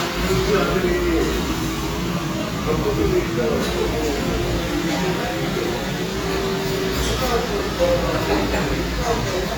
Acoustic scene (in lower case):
cafe